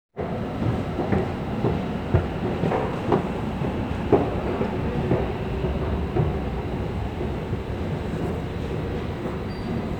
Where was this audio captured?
in a subway station